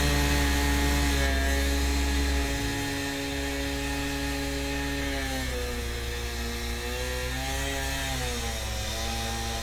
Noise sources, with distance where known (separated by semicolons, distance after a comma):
chainsaw, near